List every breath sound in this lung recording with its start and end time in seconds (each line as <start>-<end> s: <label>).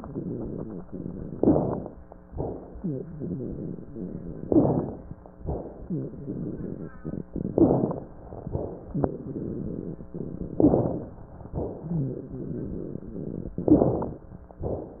1.33-1.88 s: inhalation
1.33-1.88 s: crackles
2.30-2.77 s: exhalation
2.77-3.34 s: rhonchi
4.48-5.03 s: inhalation
4.48-5.03 s: crackles
5.46-5.94 s: exhalation
5.84-6.13 s: rhonchi
7.55-8.10 s: inhalation
7.55-8.10 s: crackles
8.44-8.96 s: exhalation
10.59-11.14 s: inhalation
10.59-11.14 s: crackles
11.57-12.11 s: exhalation
11.88-12.66 s: rhonchi
13.66-14.21 s: inhalation
13.66-14.21 s: crackles